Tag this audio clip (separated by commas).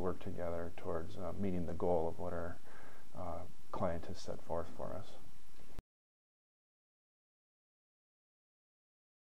Speech